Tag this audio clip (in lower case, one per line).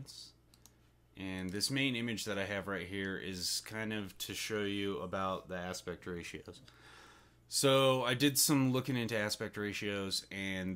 speech